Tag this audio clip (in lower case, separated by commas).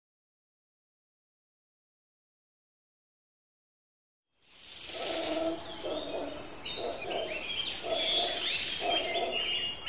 outside, rural or natural, silence